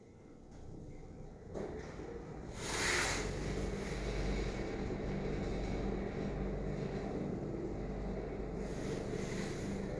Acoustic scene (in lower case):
elevator